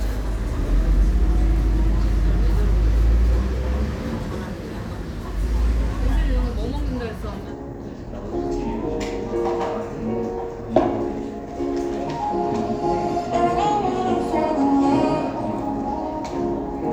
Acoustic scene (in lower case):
cafe